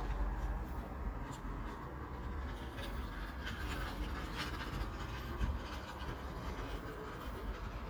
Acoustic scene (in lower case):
park